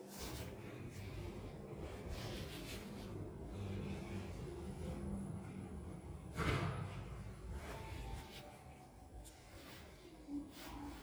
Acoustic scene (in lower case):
elevator